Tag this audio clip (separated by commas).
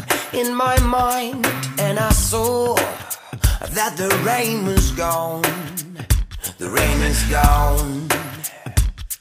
Music